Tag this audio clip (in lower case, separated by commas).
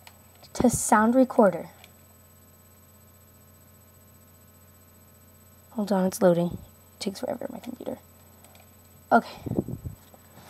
speech